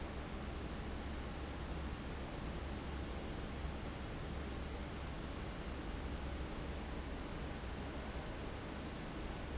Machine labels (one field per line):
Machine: fan